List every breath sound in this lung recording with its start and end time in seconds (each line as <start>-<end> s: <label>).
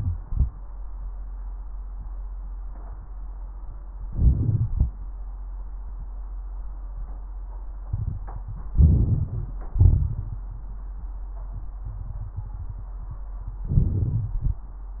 4.05-4.91 s: inhalation
4.05-4.91 s: wheeze
8.79-9.65 s: inhalation
8.79-9.65 s: crackles
9.75-10.50 s: exhalation
13.64-14.69 s: inhalation